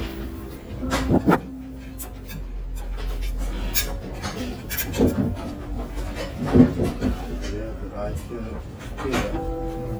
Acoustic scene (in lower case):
restaurant